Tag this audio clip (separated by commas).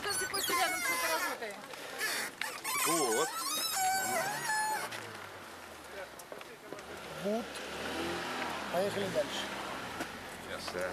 Speech